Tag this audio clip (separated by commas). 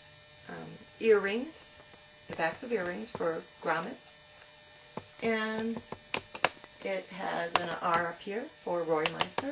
Speech